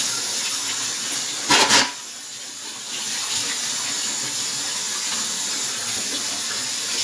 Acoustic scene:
kitchen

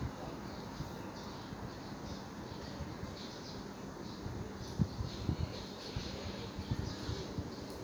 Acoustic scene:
park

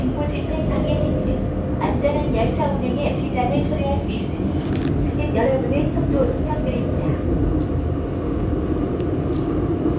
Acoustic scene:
subway train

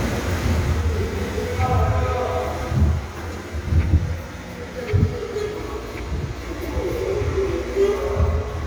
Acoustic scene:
subway station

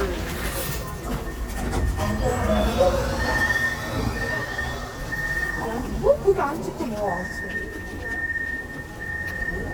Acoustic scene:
subway train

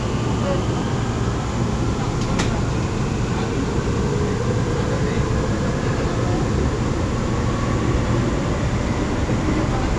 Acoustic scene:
subway train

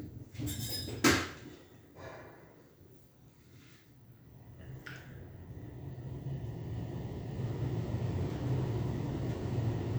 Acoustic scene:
elevator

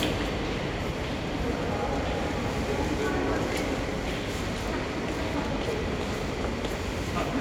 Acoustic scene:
subway station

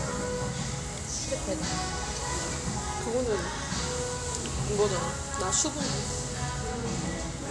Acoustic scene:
restaurant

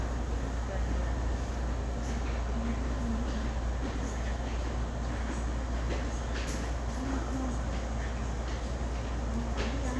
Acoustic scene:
subway station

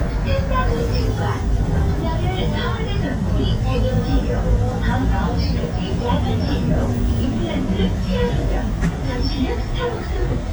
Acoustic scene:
bus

